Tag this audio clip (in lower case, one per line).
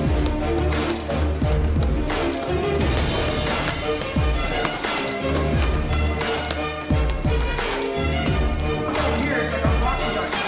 music
speech